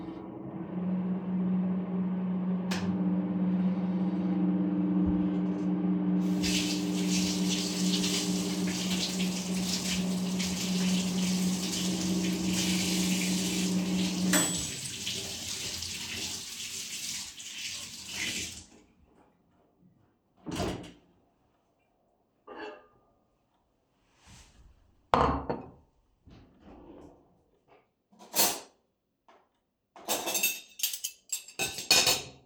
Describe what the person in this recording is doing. While the microwave was heating up some food, I started washing the dishes. When it beeped, I opened it, took out my plate and set it on the counter. I opened a drawer, took some cutlery out and placed it on the plate.